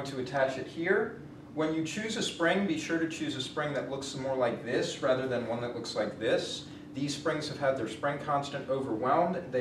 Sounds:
Speech

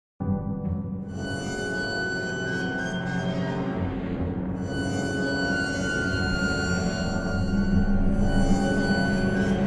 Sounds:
Soundtrack music, Music

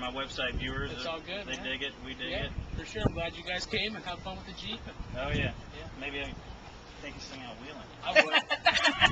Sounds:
Speech

